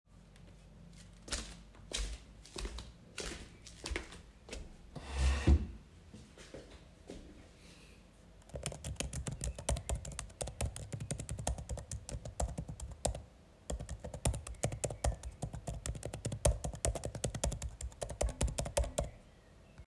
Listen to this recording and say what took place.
I walked to my desk, moved the cahir. I started typing on my laptop keyboard.